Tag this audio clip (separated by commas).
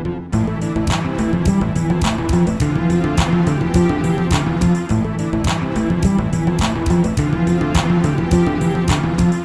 Music